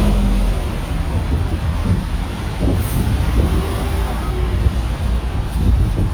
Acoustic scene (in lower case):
street